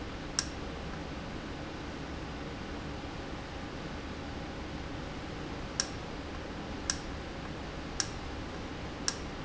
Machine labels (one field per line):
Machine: valve